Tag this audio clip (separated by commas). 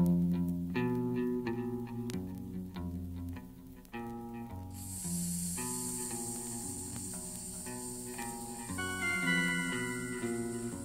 Music